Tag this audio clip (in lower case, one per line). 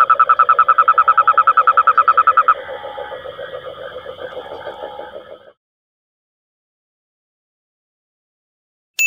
frog croaking